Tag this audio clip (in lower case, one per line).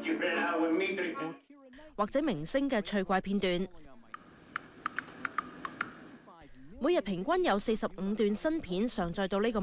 speech